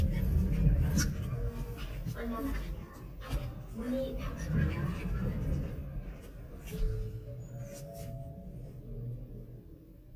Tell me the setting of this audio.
elevator